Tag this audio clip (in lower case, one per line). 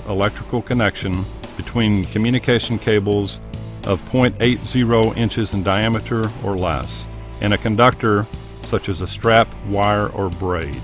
music
speech